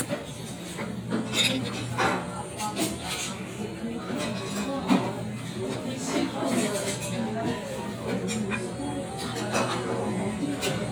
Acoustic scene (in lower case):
restaurant